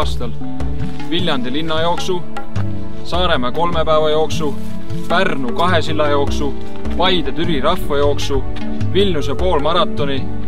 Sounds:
music, speech, outside, rural or natural

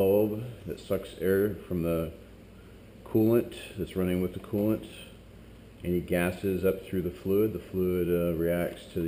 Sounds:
speech

